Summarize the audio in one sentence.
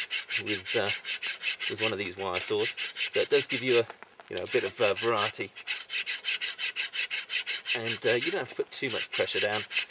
A man is sawing and talking